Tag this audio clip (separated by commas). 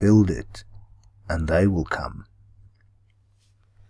Speech, Human voice, Male speech